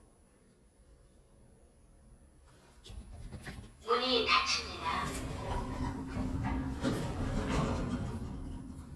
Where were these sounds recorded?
in an elevator